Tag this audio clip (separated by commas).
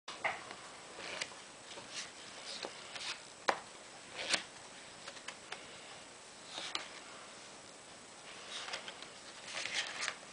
inside a small room